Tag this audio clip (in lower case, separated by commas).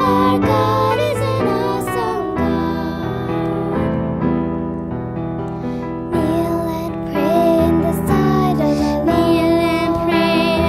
electric piano, piano, keyboard (musical)